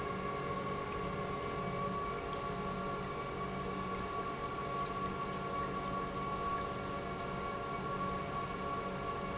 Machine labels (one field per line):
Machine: pump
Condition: normal